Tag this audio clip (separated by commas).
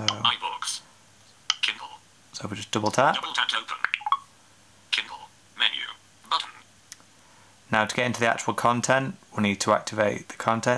Speech synthesizer, Speech